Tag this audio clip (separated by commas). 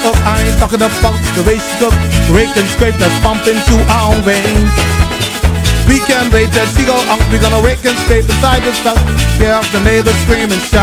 Music